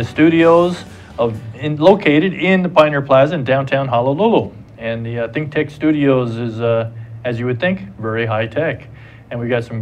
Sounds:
speech

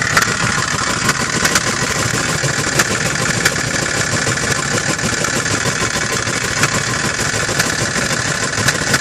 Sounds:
car engine knocking

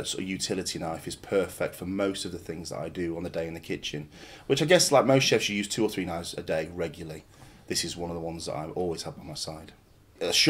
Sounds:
speech

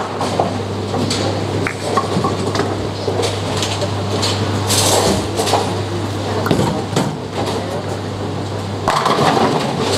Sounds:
bowling impact

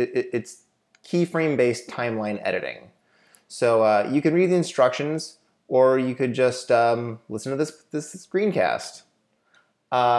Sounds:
speech

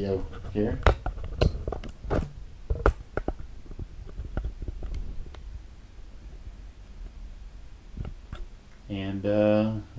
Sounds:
speech

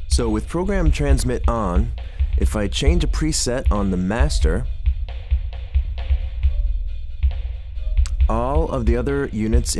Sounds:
musical instrument, music, guitar, effects unit

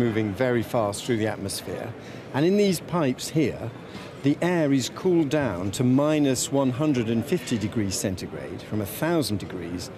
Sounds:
speech

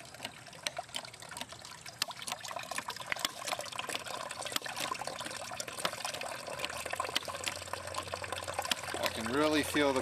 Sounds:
speech, liquid

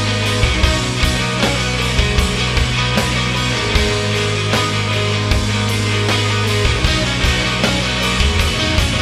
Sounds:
grunge

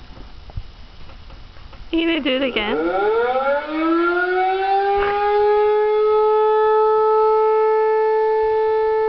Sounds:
siren, speech

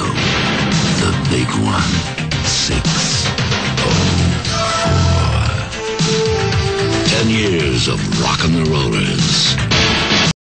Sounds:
music, speech

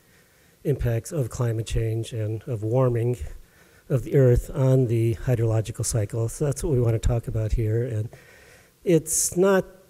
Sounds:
speech

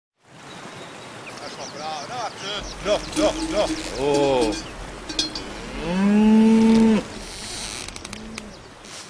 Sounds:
livestock, bovinae, cowbell, moo

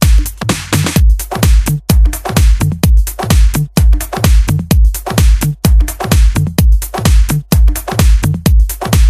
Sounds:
music

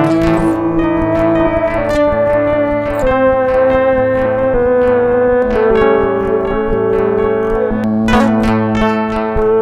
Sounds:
bass guitar, music, didgeridoo

